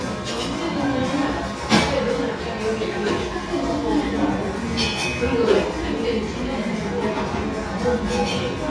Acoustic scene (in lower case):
cafe